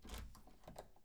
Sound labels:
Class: door; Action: opening; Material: wooden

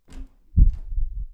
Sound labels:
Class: door; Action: opening; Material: wooden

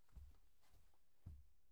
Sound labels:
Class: footsteps; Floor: carpet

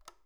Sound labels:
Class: switch; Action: being turned off; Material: plastic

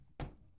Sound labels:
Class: cupboard; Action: opening; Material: wooden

